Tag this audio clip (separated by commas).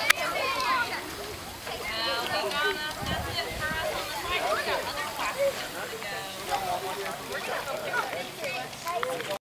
Speech